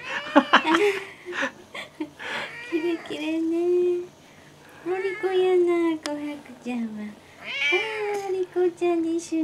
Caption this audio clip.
Cat crying followed by woman speaking and giggling, and cat crying louder